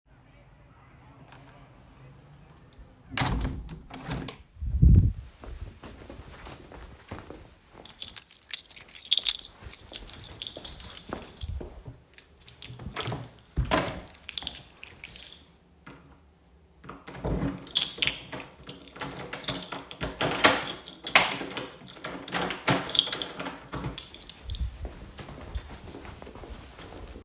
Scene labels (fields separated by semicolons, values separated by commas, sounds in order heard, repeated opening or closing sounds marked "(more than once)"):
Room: living room; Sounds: window, footsteps, keys, door (more than once)